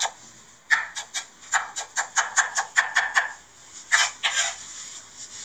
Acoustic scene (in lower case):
kitchen